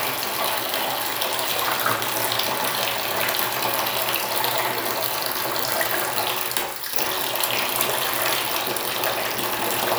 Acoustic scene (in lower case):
restroom